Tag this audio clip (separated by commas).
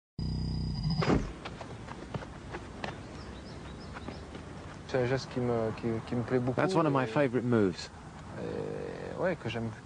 Speech